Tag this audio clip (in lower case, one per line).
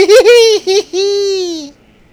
laughter
human voice